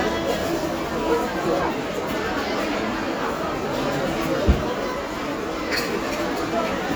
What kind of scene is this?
crowded indoor space